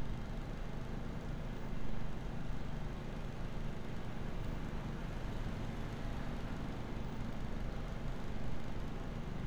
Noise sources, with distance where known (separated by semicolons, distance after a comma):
background noise